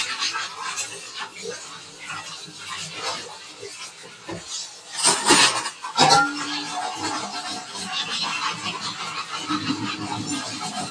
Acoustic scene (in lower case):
kitchen